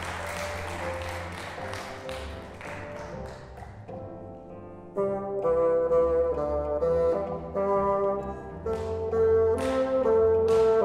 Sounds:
playing bassoon

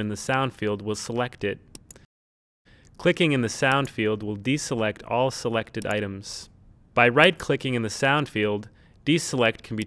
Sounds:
Speech

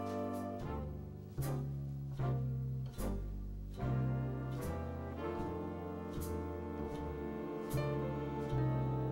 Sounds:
Music, Echo

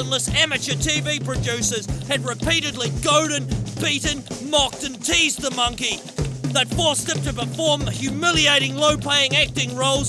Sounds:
Speech, Music

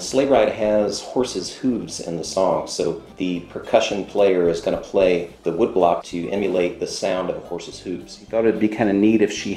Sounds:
Speech, Music

